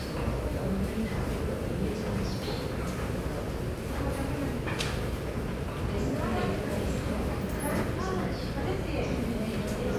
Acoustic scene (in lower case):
subway station